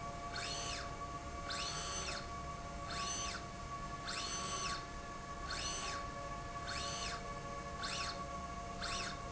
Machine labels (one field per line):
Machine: slide rail